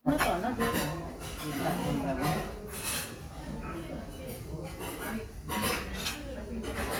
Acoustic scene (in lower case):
restaurant